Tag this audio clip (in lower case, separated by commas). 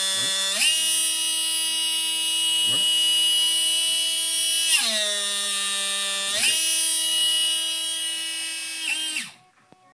speech